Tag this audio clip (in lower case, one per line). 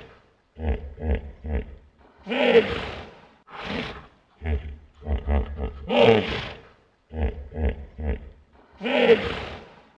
sound effect
roar